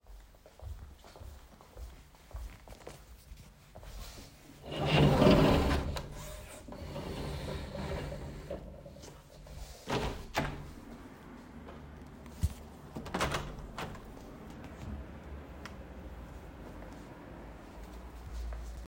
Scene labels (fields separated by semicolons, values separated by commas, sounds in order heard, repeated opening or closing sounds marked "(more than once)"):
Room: living room; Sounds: footsteps, window (more than once)